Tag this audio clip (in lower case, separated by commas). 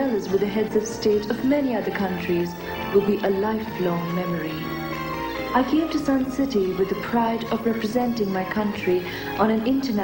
speech, music